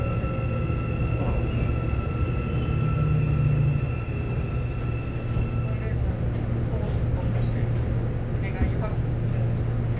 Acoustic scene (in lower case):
subway train